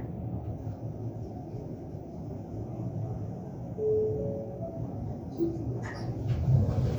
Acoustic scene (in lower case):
elevator